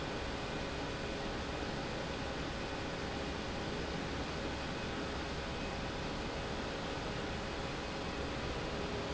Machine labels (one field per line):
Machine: pump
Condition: abnormal